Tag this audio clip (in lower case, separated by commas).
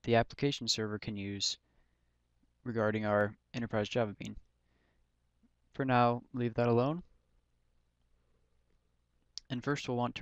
speech